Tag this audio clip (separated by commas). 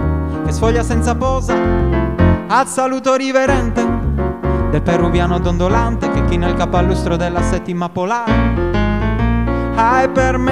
Music